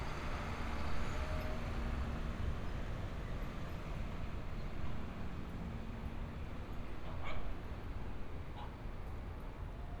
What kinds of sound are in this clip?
engine of unclear size